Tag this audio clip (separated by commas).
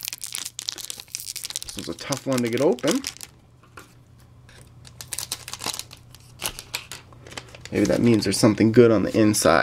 inside a small room, Speech